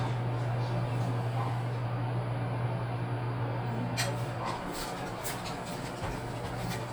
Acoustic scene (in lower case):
elevator